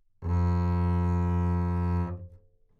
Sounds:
musical instrument
music
bowed string instrument

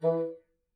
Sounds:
music
woodwind instrument
musical instrument

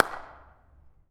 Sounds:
hands
clapping

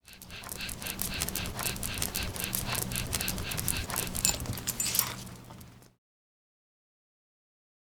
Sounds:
dog
domestic animals
animal

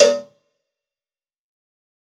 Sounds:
cowbell
bell

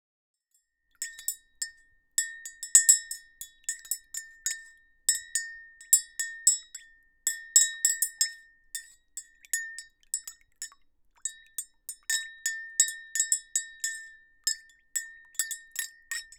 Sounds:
glass
chink

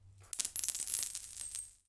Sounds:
domestic sounds
coin (dropping)

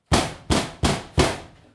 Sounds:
tools

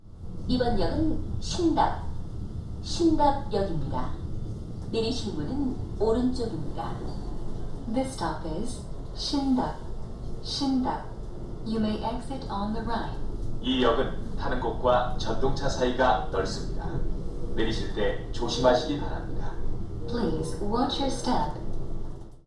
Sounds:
vehicle
subway
rail transport

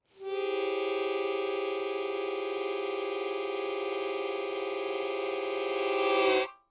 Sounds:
harmonica
musical instrument
music

